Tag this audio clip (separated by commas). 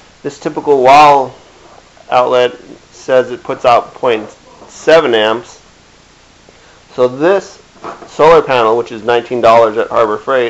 Speech